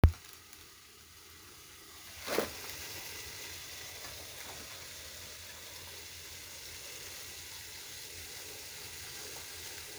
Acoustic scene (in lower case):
kitchen